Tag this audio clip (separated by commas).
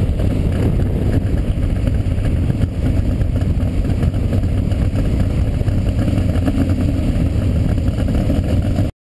Vehicle, Car